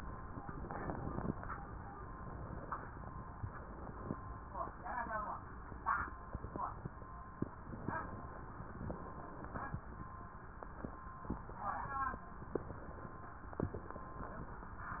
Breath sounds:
7.83-8.90 s: inhalation
8.90-9.82 s: exhalation
12.54-13.69 s: inhalation
13.69-14.71 s: exhalation

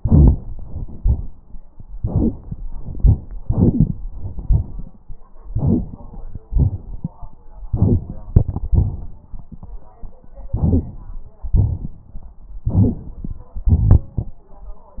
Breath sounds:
2.01-2.62 s: inhalation
2.71-3.32 s: exhalation
3.39-4.03 s: crackles
3.40-4.00 s: inhalation
4.10-5.16 s: exhalation
5.50-6.40 s: inhalation
6.49-7.38 s: exhalation
7.70-8.35 s: inhalation
8.75-9.49 s: exhalation
8.75-9.49 s: crackles
10.49-11.38 s: inhalation
11.52-12.40 s: exhalation
11.52-12.40 s: crackles
12.67-13.43 s: inhalation
12.67-13.43 s: crackles
13.51-14.39 s: exhalation

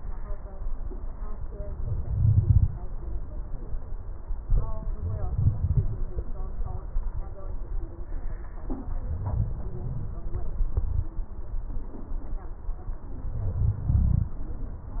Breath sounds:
1.82-2.63 s: inhalation
1.82-2.63 s: crackles
4.44-5.94 s: inhalation
4.44-5.94 s: crackles
9.06-10.13 s: inhalation
9.06-10.13 s: crackles
13.27-14.35 s: inhalation

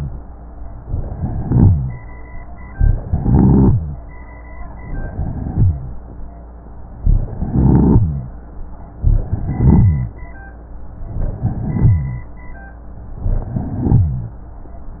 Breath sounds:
0.78-2.01 s: inhalation
1.12-2.01 s: rhonchi
2.77-4.00 s: inhalation
3.09-3.99 s: rhonchi
4.71-5.94 s: inhalation
5.03-5.92 s: rhonchi
7.10-8.33 s: inhalation
7.36-8.35 s: rhonchi
8.99-10.23 s: inhalation
9.22-10.21 s: rhonchi
11.04-12.28 s: inhalation
11.40-12.28 s: rhonchi
13.17-14.40 s: inhalation
13.51-14.38 s: rhonchi

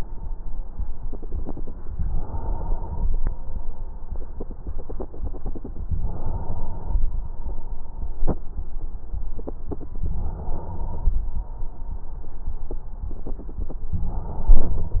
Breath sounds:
1.95-3.15 s: inhalation
5.87-7.07 s: inhalation
10.07-11.28 s: inhalation
13.92-15.00 s: inhalation

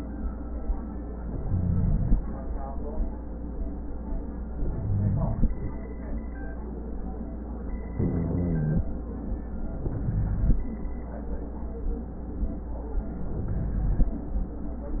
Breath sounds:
1.33-2.15 s: inhalation
1.33-2.15 s: rhonchi
4.63-5.45 s: inhalation
4.63-5.45 s: rhonchi
7.99-8.84 s: inhalation
7.99-8.84 s: rhonchi
9.75-10.61 s: inhalation
9.75-10.61 s: rhonchi
13.21-14.06 s: inhalation

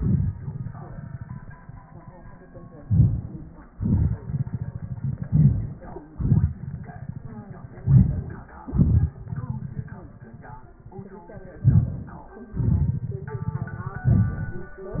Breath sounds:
2.87-3.71 s: inhalation
3.73-4.78 s: exhalation
5.20-6.15 s: inhalation
6.16-7.22 s: exhalation
7.84-8.46 s: inhalation
8.47-10.14 s: exhalation
11.57-12.29 s: inhalation
12.31-14.01 s: exhalation

